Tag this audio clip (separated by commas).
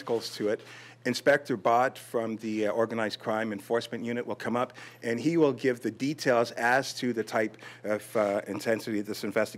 Speech